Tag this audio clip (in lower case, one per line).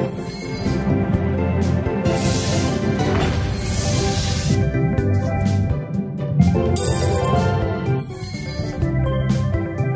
slot machine